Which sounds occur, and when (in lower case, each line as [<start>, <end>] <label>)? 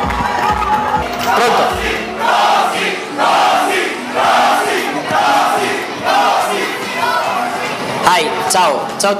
[0.00, 9.15] music
[0.32, 0.58] generic impact sounds
[1.07, 1.25] generic impact sounds
[1.21, 2.04] battle cry
[1.25, 1.77] male speech
[2.17, 3.01] battle cry
[3.18, 3.95] battle cry
[4.10, 4.90] battle cry
[5.07, 5.85] battle cry
[6.06, 6.73] battle cry
[6.54, 7.33] human voice
[8.02, 8.25] male speech
[8.47, 8.74] male speech
[8.95, 9.15] male speech